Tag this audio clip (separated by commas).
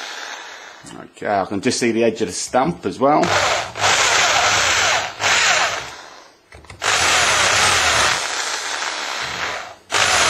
Speech, Tools